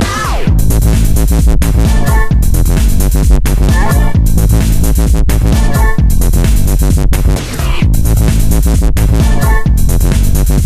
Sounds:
Music, Electronic music, Dubstep

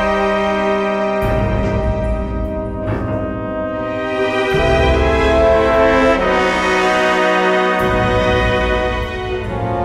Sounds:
Music, Sound effect

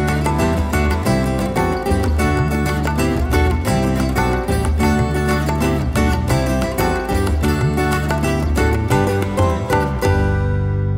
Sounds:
Music

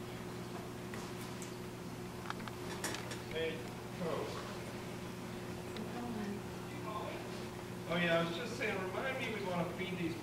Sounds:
Speech

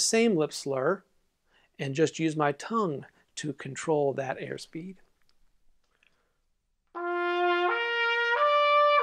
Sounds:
playing cornet

